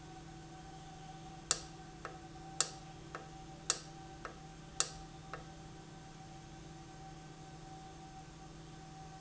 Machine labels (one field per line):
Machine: valve